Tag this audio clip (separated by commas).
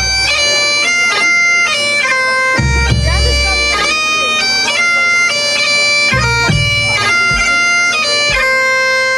Music, Speech, Crowd, Bagpipes